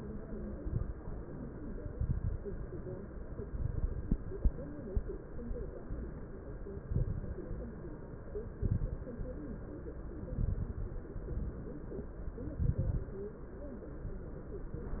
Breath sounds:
0.49-0.95 s: exhalation
0.49-0.95 s: crackles
1.92-2.37 s: exhalation
1.92-2.37 s: crackles
3.46-4.16 s: exhalation
3.46-4.16 s: crackles
6.90-7.45 s: exhalation
6.90-7.45 s: crackles
8.61-9.16 s: exhalation
8.61-9.16 s: crackles
10.32-10.87 s: exhalation
10.32-10.87 s: crackles
12.62-13.17 s: exhalation
12.62-13.17 s: crackles

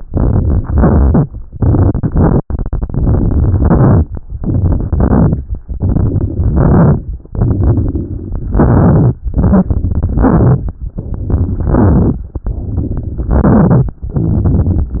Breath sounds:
0.00-0.70 s: inhalation
0.68-1.39 s: exhalation
1.55-2.09 s: inhalation
2.09-2.39 s: exhalation
2.83-3.52 s: inhalation
3.52-4.06 s: exhalation
4.42-4.88 s: inhalation
4.93-5.39 s: exhalation
5.75-6.55 s: inhalation
6.55-7.00 s: exhalation
7.38-8.50 s: inhalation
8.50-9.15 s: exhalation
9.33-10.13 s: inhalation
10.13-10.74 s: exhalation
11.01-11.69 s: inhalation
11.69-12.28 s: exhalation
12.48-13.28 s: inhalation
13.28-13.98 s: exhalation
14.14-15.00 s: inhalation

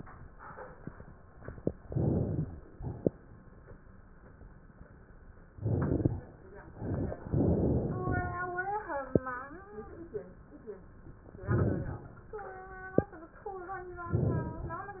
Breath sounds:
1.82-2.51 s: inhalation
5.54-6.28 s: inhalation
7.25-8.51 s: exhalation
11.46-12.20 s: inhalation
14.10-14.84 s: inhalation

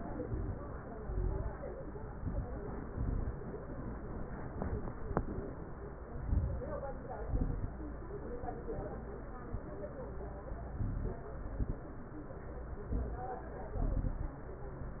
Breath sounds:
0.23-0.85 s: inhalation
0.93-1.55 s: exhalation
1.96-2.58 s: inhalation
2.85-3.48 s: exhalation
4.33-4.96 s: inhalation
5.02-5.64 s: exhalation
6.12-6.74 s: inhalation
7.18-7.81 s: exhalation
10.68-11.30 s: inhalation
11.36-11.99 s: exhalation
12.92-13.55 s: inhalation
13.76-14.38 s: exhalation

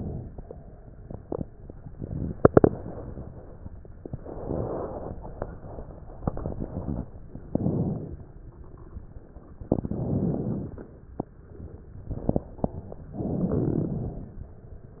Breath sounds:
7.51-8.22 s: inhalation
9.70-10.89 s: inhalation
13.21-14.40 s: inhalation

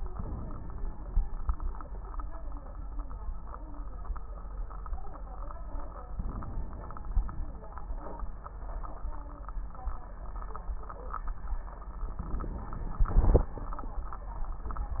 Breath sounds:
0.12-1.02 s: inhalation
0.12-1.02 s: crackles
6.11-7.17 s: inhalation
6.11-7.17 s: crackles
12.04-13.11 s: inhalation
12.04-13.11 s: crackles
13.08-13.56 s: exhalation

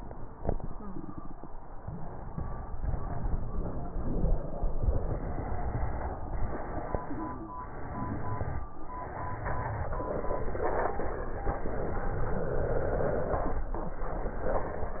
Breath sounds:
1.79-2.76 s: inhalation
2.76-4.07 s: exhalation

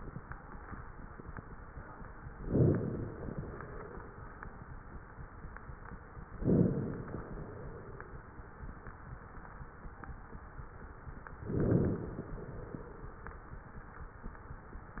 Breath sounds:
2.40-3.98 s: inhalation
6.45-8.03 s: inhalation
11.51-13.10 s: inhalation

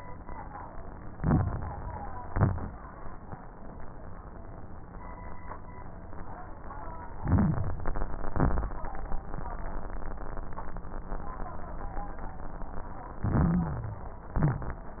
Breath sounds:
1.12-2.03 s: inhalation
1.12-2.03 s: crackles
2.22-2.79 s: exhalation
2.22-2.79 s: crackles
7.20-7.77 s: inhalation
7.20-7.77 s: crackles
8.27-8.83 s: exhalation
8.27-8.83 s: crackles
13.21-14.12 s: inhalation
13.21-14.12 s: stridor
14.35-15.00 s: exhalation
14.35-15.00 s: crackles

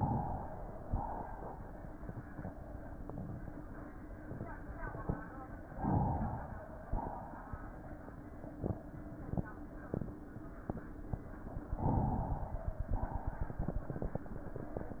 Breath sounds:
0.00-0.82 s: inhalation
0.85-1.67 s: exhalation
5.69-6.72 s: inhalation
6.87-7.69 s: exhalation
11.76-12.87 s: inhalation
12.96-13.85 s: exhalation

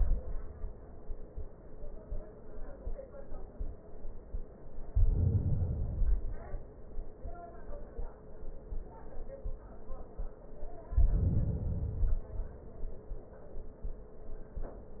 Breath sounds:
4.82-6.54 s: inhalation
10.88-12.60 s: inhalation

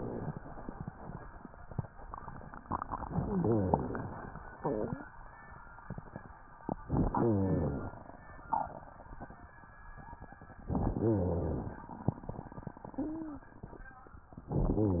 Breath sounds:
2.99-4.27 s: inhalation
2.99-4.27 s: crackles
6.85-7.92 s: inhalation
6.85-7.92 s: crackles
10.67-11.85 s: inhalation
10.67-11.85 s: crackles
14.51-15.00 s: inhalation
14.51-15.00 s: crackles

